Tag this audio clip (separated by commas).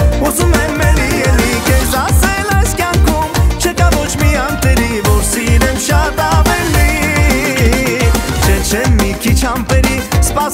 Music